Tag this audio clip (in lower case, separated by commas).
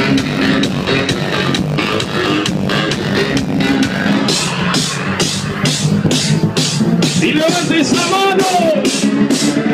music